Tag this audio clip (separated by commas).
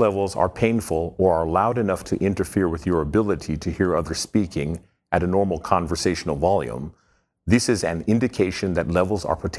Speech